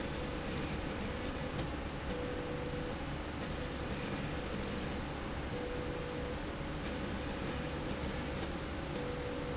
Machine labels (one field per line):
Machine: slide rail